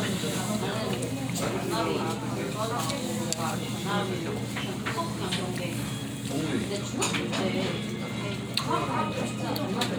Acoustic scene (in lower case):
crowded indoor space